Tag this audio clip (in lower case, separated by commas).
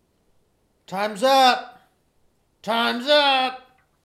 male speech, human voice, speech